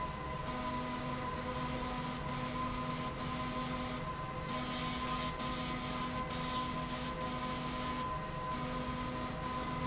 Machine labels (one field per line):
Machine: slide rail